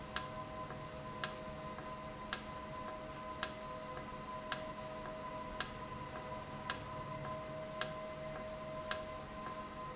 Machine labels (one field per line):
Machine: valve